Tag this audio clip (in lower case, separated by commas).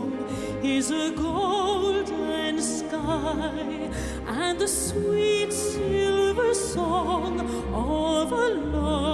music